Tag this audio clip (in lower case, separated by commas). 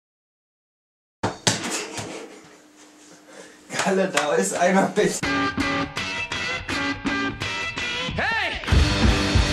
music, bouncing, speech